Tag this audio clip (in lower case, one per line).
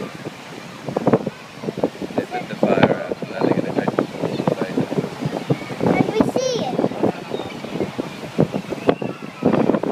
speech